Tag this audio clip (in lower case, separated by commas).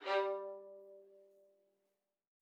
musical instrument, music, bowed string instrument